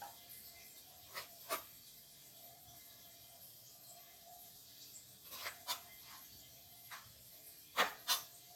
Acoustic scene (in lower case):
kitchen